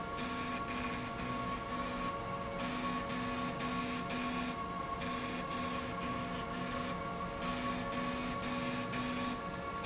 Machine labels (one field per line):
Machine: slide rail